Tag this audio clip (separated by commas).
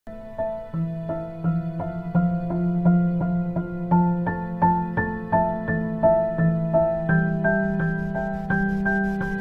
New-age music